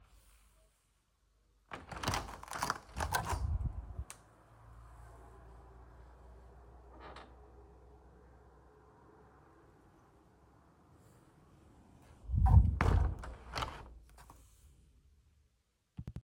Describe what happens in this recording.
I walked to the window and opened it fully. After a moment, I closed it again.